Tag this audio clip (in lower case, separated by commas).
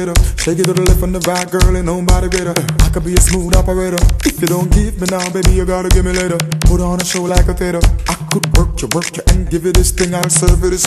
music